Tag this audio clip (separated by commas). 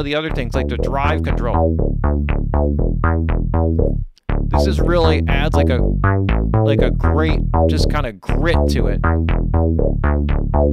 Music, Speech